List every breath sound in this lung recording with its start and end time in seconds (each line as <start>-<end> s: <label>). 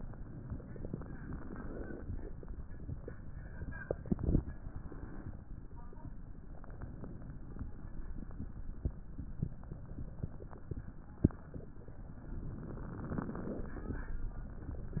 0.64-2.22 s: inhalation
12.31-14.10 s: inhalation